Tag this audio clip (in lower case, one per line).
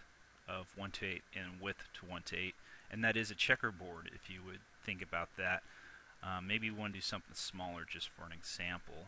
speech